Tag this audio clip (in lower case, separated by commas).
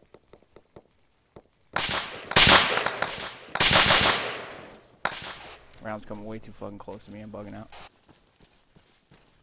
outside, rural or natural, speech